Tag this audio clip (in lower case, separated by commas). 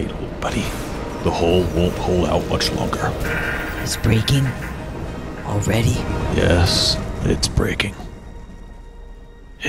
music, speech